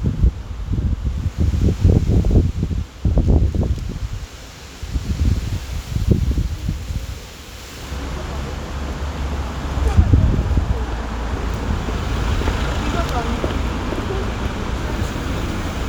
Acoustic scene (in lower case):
street